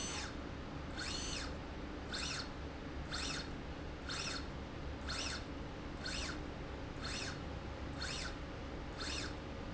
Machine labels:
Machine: slide rail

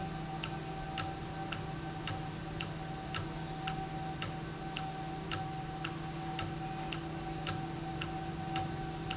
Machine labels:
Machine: valve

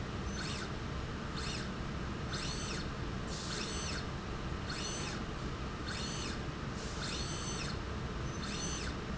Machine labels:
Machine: slide rail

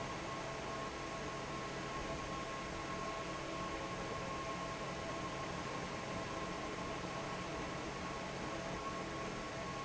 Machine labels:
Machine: fan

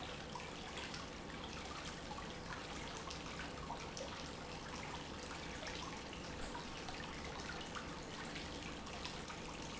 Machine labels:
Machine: pump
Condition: normal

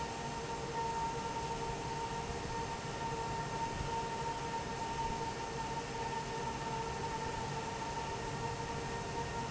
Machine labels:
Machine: fan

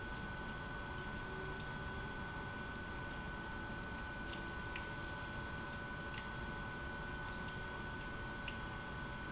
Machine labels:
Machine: pump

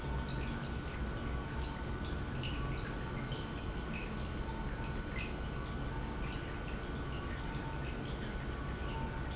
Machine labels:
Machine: pump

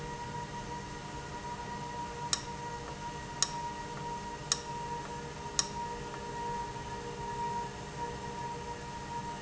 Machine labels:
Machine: valve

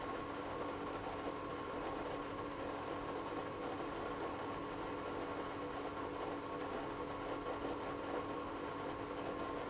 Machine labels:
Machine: pump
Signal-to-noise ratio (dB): 6 dB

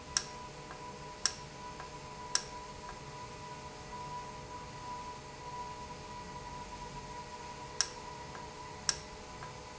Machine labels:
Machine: valve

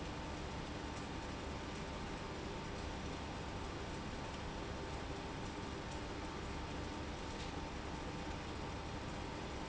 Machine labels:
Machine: pump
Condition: abnormal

